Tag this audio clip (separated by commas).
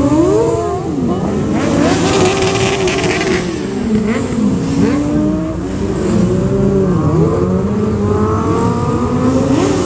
Motorcycle